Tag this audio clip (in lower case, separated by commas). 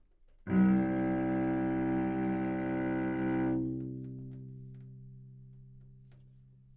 bowed string instrument, musical instrument, music